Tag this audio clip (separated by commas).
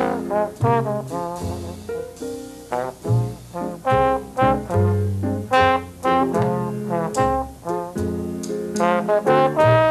Music, Jazz, Jingle (music)